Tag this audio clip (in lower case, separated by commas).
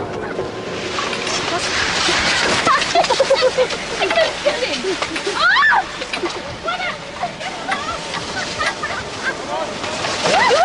speech, outside, urban or man-made